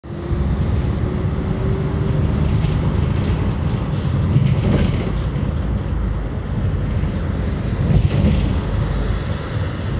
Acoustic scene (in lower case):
bus